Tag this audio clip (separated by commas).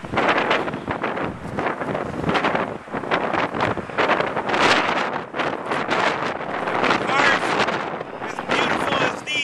Vehicle